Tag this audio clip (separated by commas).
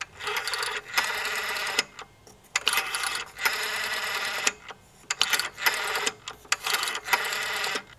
Telephone, Alarm